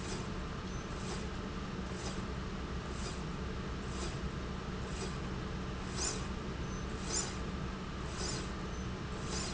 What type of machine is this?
slide rail